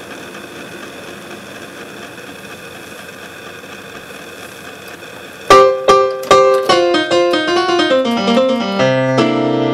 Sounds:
Sampler, Music

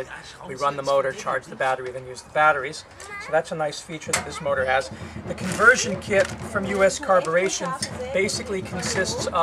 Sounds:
Speech

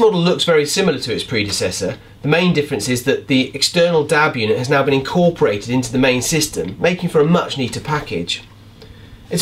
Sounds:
Speech

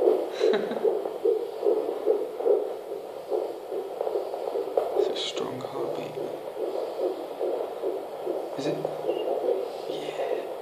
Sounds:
Speech

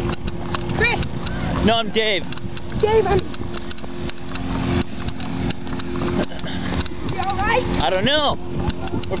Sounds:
Vehicle, Speech

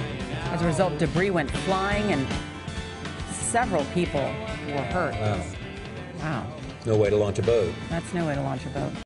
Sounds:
Music, Speech

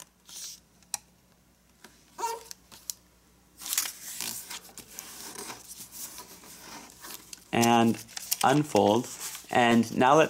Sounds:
inside a small room, Speech

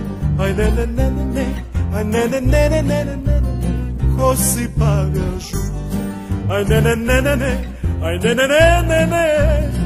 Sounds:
Exciting music, Music

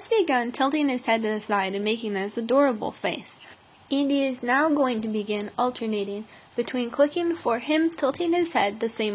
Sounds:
Speech

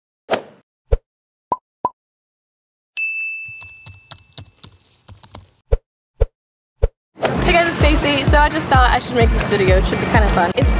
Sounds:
swoosh

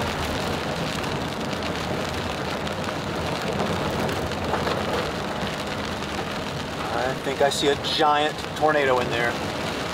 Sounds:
tornado roaring

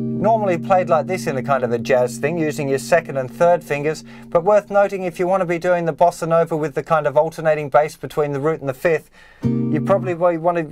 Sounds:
Musical instrument, Guitar

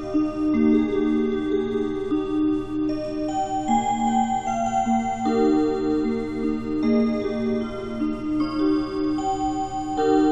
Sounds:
Music

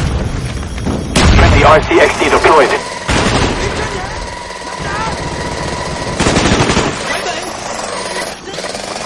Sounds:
Speech

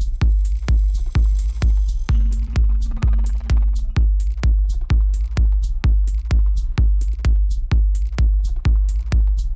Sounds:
Music

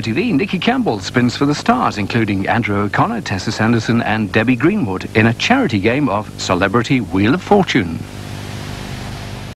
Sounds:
Speech

